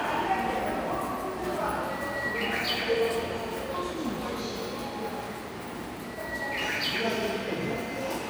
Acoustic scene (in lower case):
subway station